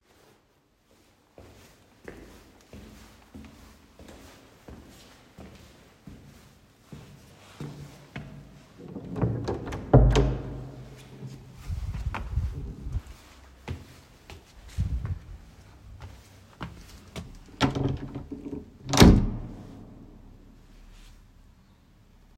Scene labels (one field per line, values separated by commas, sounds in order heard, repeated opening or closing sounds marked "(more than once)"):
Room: hallway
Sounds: footsteps, door (more than once)